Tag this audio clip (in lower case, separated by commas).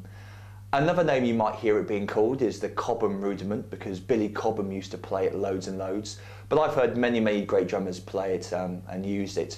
speech